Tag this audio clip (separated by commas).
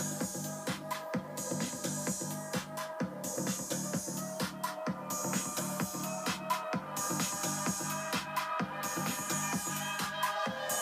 Music